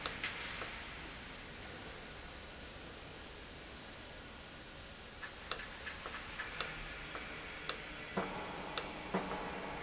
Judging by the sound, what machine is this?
valve